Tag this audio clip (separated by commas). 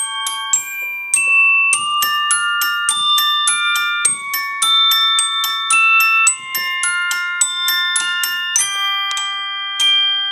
Keyboard (musical), Glockenspiel, Piano, Music, Musical instrument